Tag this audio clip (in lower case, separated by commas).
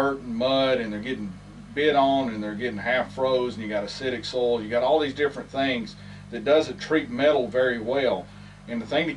speech